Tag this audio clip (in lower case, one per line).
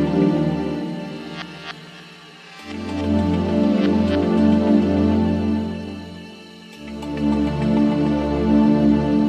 music